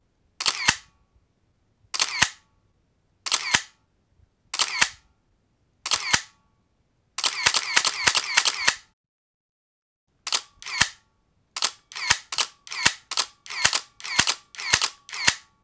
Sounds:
camera
mechanisms

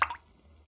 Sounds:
raindrop
liquid
water
rain
splatter

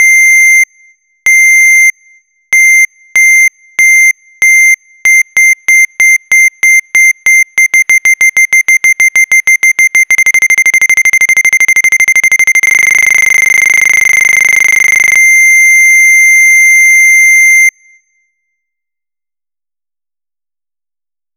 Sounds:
telephone
ringtone
alarm

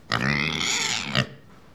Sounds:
livestock
animal

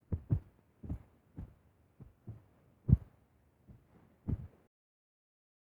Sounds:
footsteps

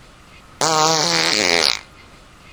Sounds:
fart

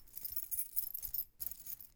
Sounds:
keys jangling
home sounds

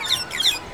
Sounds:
wild animals
animal
bird

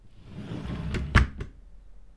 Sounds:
domestic sounds
drawer open or close

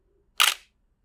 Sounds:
mechanisms
camera

